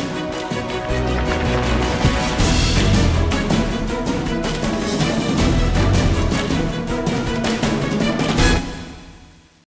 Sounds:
Music

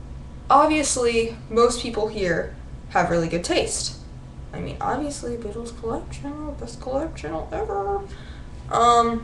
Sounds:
Speech

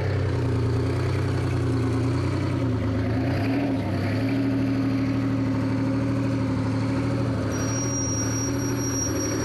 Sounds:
Vehicle, Truck

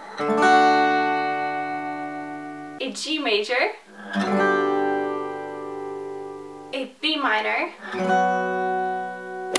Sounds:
Plucked string instrument, Musical instrument, Music, Strum, Guitar

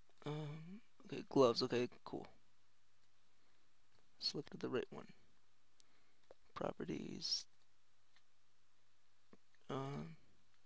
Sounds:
inside a small room, Speech

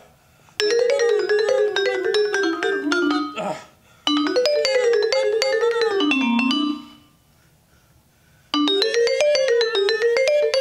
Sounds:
Vibraphone, Music

